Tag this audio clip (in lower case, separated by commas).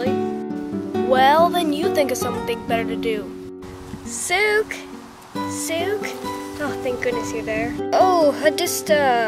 speech, music